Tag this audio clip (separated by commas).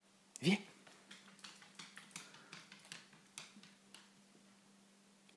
Dog, Animal, pets